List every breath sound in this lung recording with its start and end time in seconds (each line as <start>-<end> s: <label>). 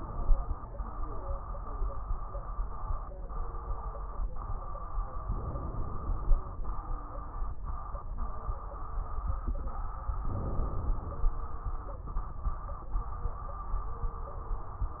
5.23-6.51 s: inhalation
10.24-11.38 s: inhalation